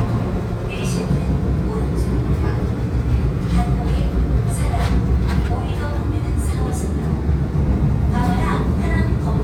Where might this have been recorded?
on a subway train